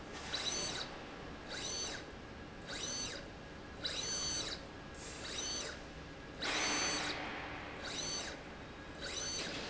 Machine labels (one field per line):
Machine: slide rail